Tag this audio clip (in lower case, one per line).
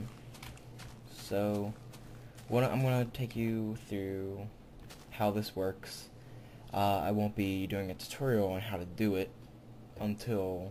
speech